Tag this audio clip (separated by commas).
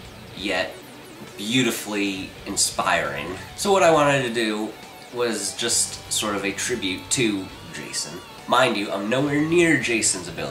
Speech, Music